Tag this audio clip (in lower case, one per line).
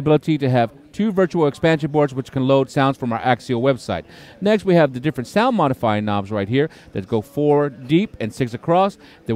speech